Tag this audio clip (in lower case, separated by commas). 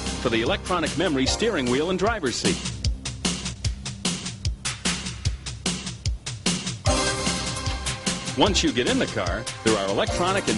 speech, music